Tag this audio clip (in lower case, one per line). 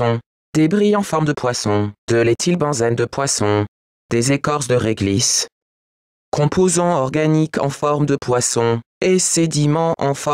speech